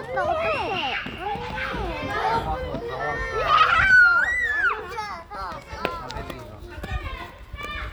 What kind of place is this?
park